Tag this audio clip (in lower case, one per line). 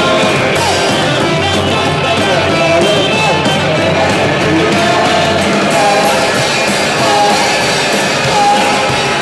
music